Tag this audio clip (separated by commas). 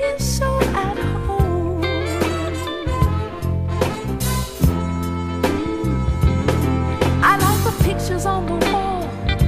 Music, Soul music